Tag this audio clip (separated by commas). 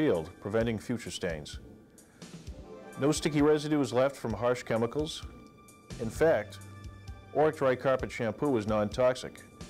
Music, Speech